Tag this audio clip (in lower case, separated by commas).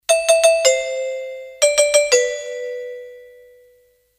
home sounds, door, doorbell, alarm